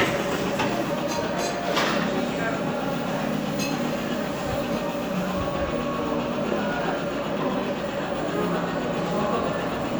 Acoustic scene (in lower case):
cafe